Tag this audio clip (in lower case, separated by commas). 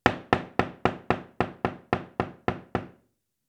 domestic sounds, wood, door, knock